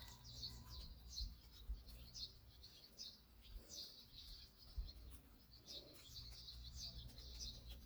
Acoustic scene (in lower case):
park